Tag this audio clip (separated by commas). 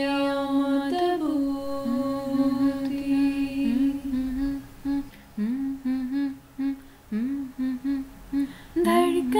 Music, Singing